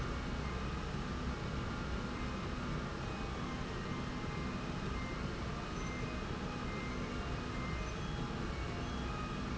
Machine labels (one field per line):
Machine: slide rail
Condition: normal